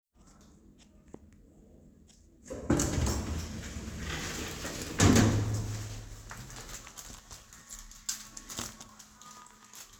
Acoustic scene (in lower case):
elevator